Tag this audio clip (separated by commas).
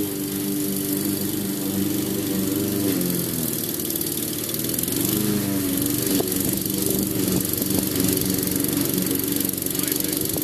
lawn mowing, Lawn mower